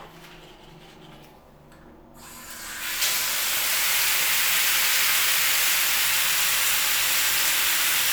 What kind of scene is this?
restroom